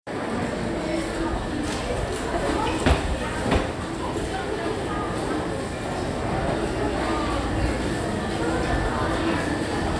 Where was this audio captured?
in a crowded indoor space